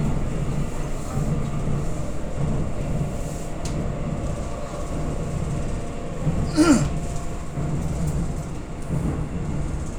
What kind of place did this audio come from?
subway train